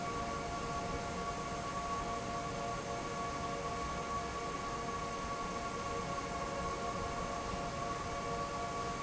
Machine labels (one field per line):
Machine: fan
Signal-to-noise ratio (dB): -6 dB